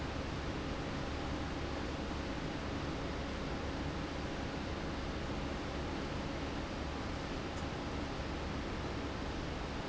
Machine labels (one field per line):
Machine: fan